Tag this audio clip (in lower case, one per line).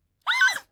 screaming
human voice